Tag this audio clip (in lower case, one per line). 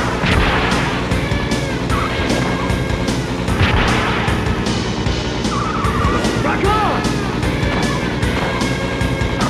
music
speech